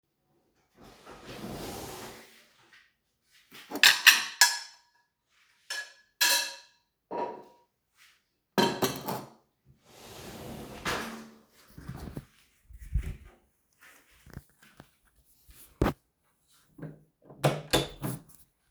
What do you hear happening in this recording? I opened the drawer, took out the dishes, I put the dishes on the table and closed the door to the kitchen